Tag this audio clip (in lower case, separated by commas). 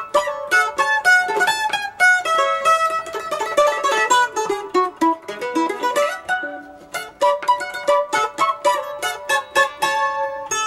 music, plucked string instrument, mandolin, musical instrument